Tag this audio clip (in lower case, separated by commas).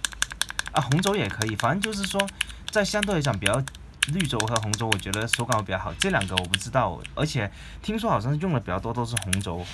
typing on typewriter